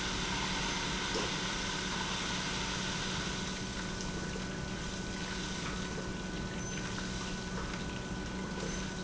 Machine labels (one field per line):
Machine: pump